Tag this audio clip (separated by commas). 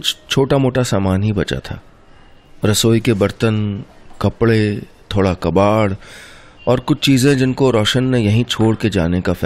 Speech